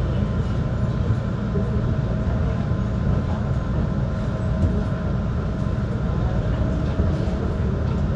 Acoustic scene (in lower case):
subway train